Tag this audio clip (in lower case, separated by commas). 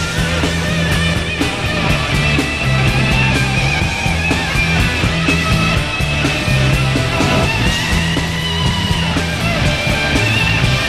music, heavy metal, punk rock